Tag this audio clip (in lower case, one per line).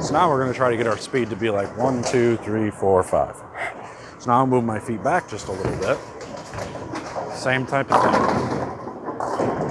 bowling impact